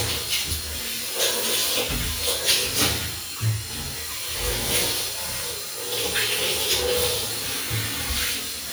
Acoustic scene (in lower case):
restroom